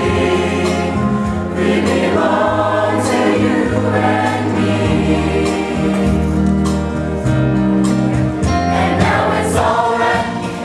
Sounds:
Choir, Music, Gospel music

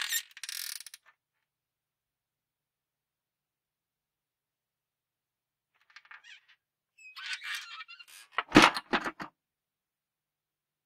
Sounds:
opening or closing car doors

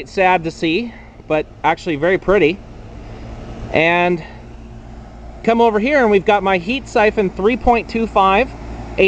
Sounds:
Speech

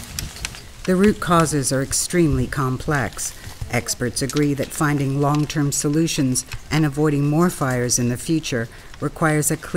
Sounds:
Speech

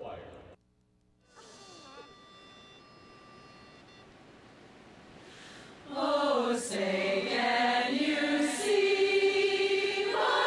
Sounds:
Choir, Speech, Female singing

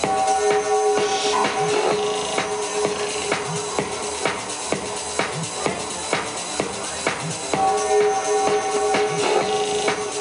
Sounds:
Music, Speech

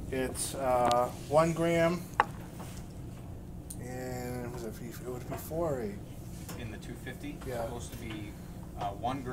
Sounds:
Speech

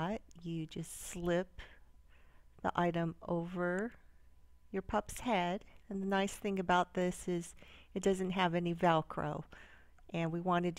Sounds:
Speech

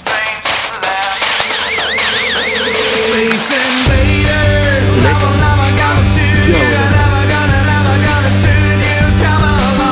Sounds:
outside, urban or man-made, Music, Speech

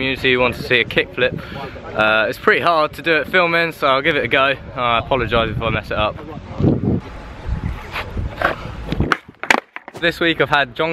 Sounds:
Speech

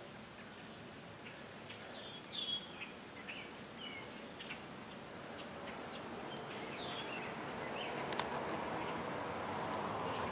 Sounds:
bird song, Environmental noise

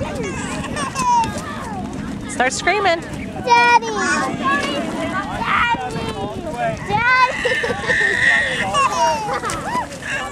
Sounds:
Speech

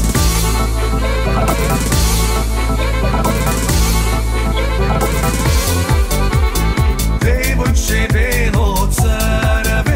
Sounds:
Music, Disco

